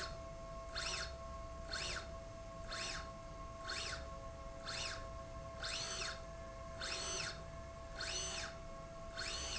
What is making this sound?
slide rail